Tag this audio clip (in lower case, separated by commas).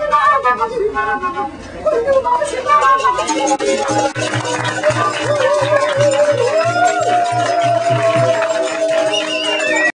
music, flute